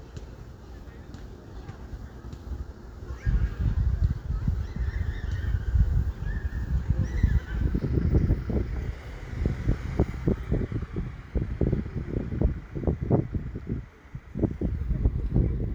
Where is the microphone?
in a residential area